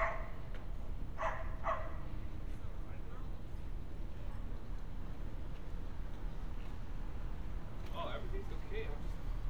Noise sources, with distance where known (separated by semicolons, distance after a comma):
dog barking or whining